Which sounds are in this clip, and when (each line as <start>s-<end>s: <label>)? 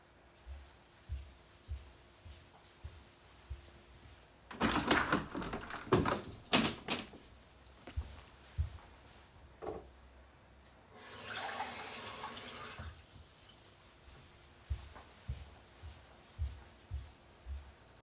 0.5s-4.6s: footsteps
4.6s-7.0s: window
8.0s-8.7s: footsteps
9.6s-9.8s: cutlery and dishes
11.0s-12.9s: running water
14.7s-17.7s: footsteps